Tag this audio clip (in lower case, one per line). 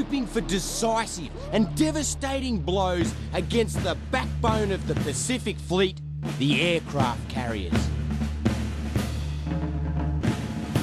timpani